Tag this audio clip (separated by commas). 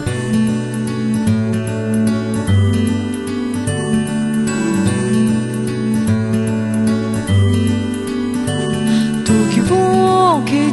Music